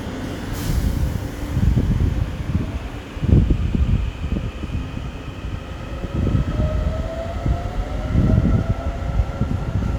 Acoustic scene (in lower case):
subway station